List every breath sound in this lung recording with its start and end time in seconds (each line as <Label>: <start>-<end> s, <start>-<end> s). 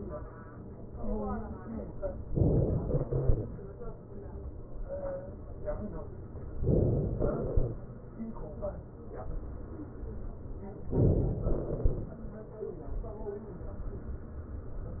Inhalation: 2.37-2.82 s, 6.55-7.20 s, 10.93-11.46 s
Exhalation: 2.82-3.79 s, 7.19-7.84 s, 11.46-12.10 s